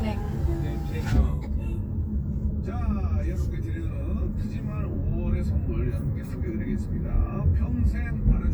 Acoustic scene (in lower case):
car